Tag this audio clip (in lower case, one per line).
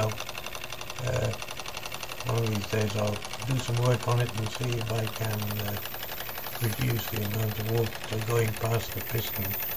speech